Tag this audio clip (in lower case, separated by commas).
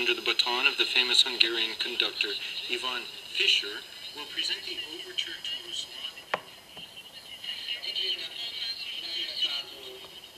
speech, radio